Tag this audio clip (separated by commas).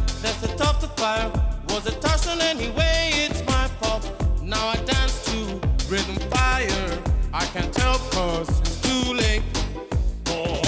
Music